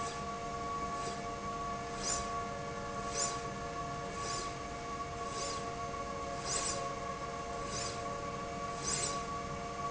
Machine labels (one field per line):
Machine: slide rail